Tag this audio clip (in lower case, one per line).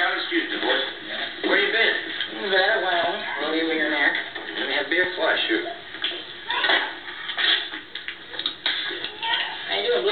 speech